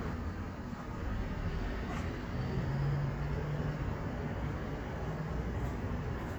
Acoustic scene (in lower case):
street